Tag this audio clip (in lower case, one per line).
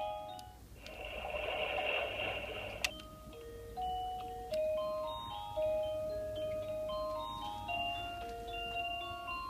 alarm clock
music